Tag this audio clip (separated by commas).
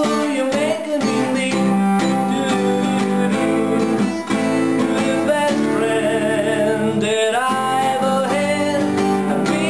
Acoustic guitar, Music, Strum, Plucked string instrument, Musical instrument, Guitar, Electric guitar